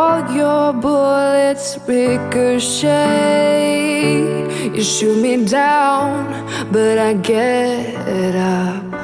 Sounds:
music

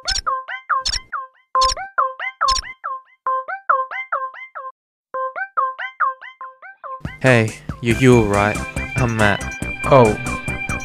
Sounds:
music
speech

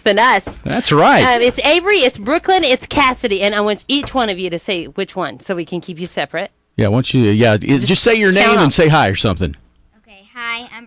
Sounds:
speech

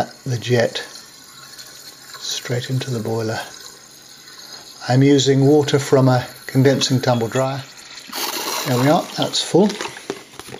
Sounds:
speech

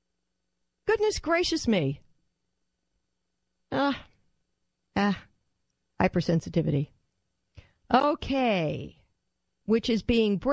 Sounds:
speech

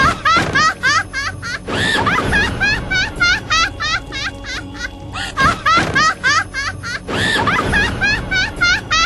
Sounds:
laughter
inside a large room or hall
music

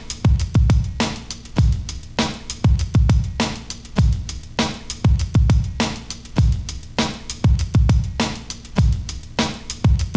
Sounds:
music

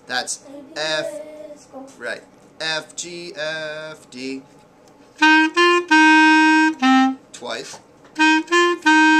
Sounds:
playing clarinet

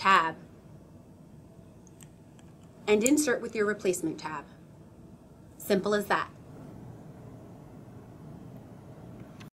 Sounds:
speech

